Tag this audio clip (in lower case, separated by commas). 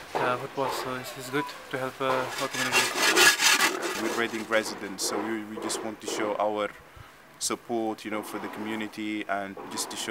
speech, outside, urban or man-made